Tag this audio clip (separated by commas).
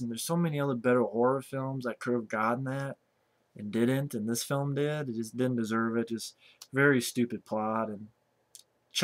Speech